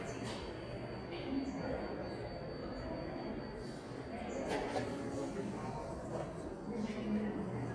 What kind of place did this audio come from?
subway station